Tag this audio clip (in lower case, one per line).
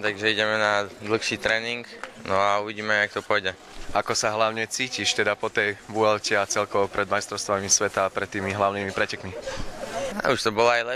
speech